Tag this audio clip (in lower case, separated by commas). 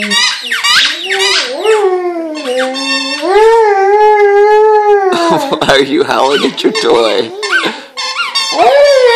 speech